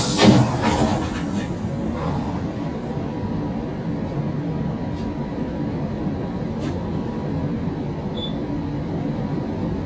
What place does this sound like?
bus